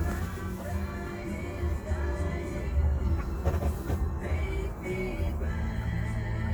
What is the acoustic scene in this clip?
car